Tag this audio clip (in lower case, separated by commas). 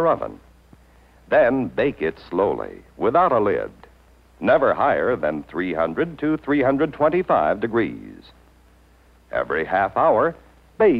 speech